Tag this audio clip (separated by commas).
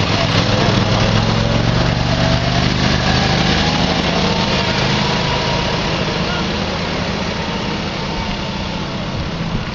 Vehicle, Truck